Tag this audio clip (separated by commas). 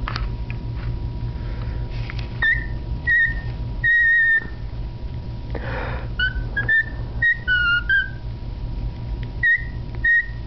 Domestic animals, Bird